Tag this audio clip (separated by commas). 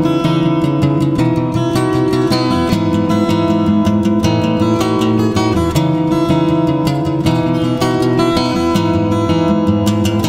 Musical instrument, Acoustic guitar, Guitar, Music